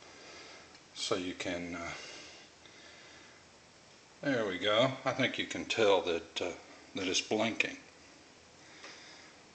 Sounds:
speech, inside a small room

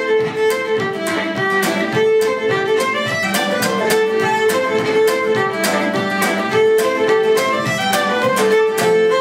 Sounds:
music

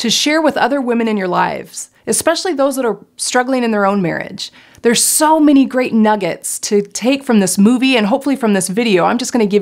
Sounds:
speech, inside a small room

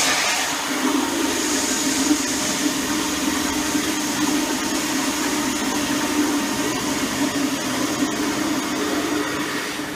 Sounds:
inside a small room

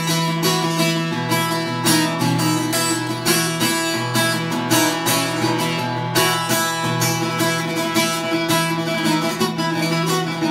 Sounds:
musical instrument, classical music, guitar, independent music, music

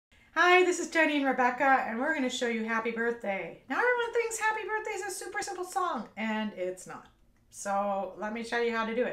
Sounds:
playing ukulele

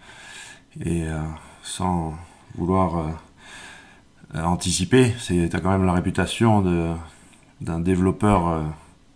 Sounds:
speech

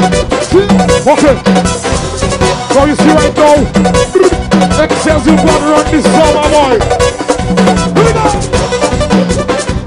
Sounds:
music

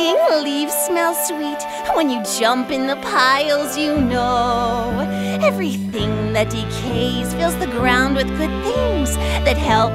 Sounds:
music

